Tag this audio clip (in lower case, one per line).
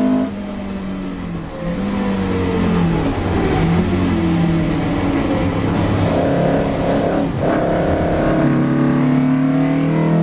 car
vehicle
outside, urban or man-made
auto racing